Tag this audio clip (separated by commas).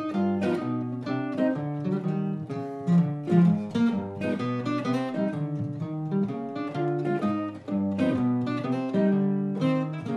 Strum, Musical instrument, Guitar, Plucked string instrument, Music